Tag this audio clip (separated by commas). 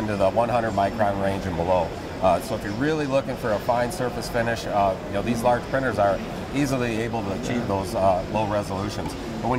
Speech